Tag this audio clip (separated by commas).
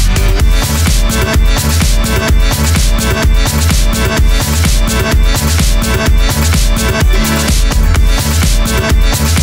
Music, Soundtrack music, Exciting music, Disco